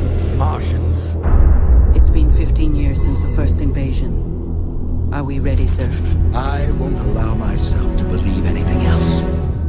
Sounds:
music
speech

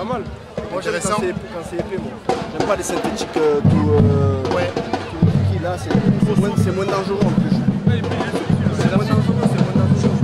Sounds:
speech
music

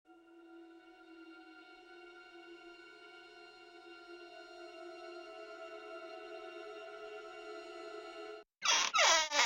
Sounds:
music

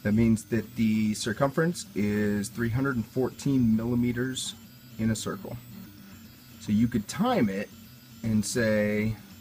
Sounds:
music
speech

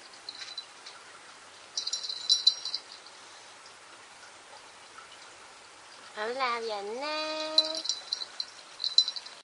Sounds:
speech

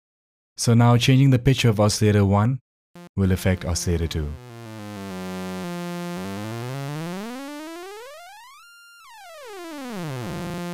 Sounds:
speech

